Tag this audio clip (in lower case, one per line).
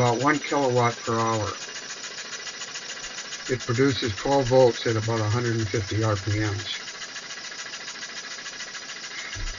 speech